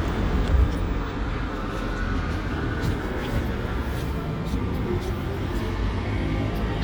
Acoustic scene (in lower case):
residential area